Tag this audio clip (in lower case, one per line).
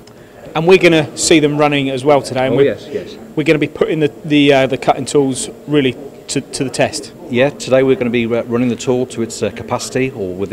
speech